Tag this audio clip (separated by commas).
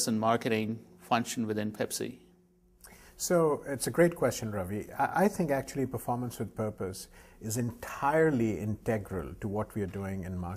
Speech